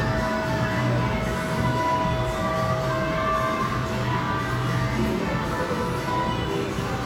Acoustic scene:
cafe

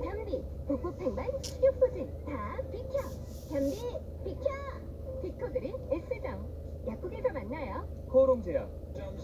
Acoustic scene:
car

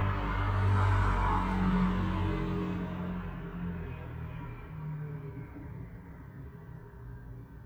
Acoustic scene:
street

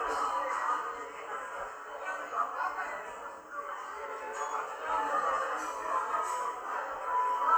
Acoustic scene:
cafe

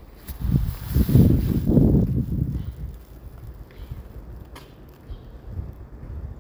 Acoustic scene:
residential area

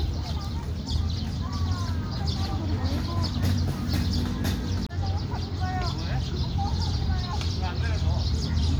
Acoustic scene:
park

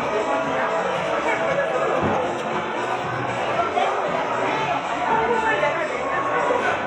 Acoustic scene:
cafe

